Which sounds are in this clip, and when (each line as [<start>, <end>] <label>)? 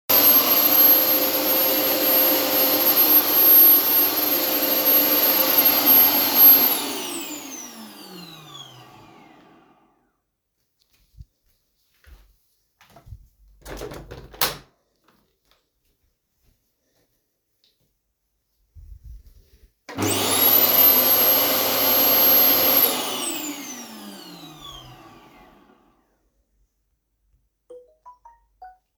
[0.00, 10.32] vacuum cleaner
[10.92, 13.55] footsteps
[13.58, 14.87] window
[15.09, 19.56] footsteps
[19.75, 25.75] vacuum cleaner
[27.57, 28.94] phone ringing